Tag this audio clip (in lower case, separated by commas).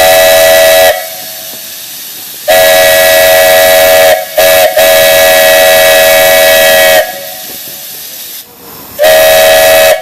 steam whistle